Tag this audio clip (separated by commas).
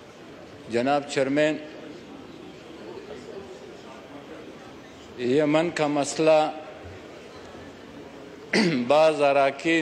Speech, man speaking